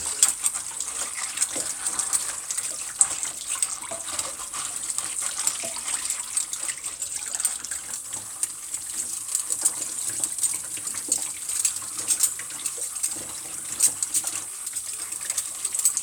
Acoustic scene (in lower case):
kitchen